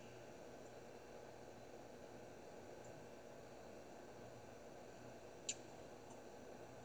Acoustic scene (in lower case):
car